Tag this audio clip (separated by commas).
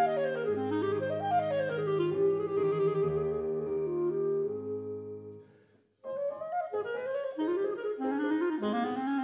Keyboard (musical), Music, Musical instrument, Piano, Clarinet, playing clarinet